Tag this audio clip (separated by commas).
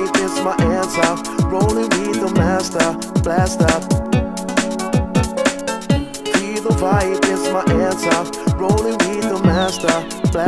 Music